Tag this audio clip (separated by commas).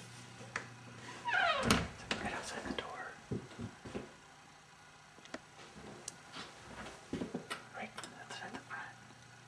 Speech